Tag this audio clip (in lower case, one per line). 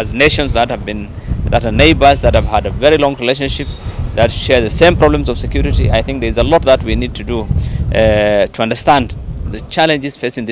speech